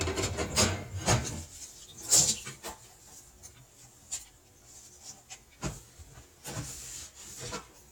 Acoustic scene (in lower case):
kitchen